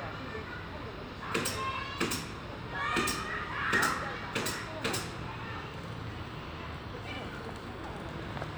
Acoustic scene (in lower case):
residential area